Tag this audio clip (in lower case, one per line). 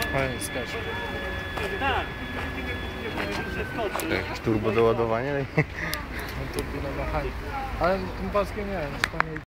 speech
footsteps